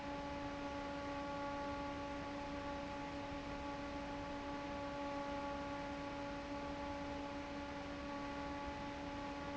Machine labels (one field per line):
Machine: fan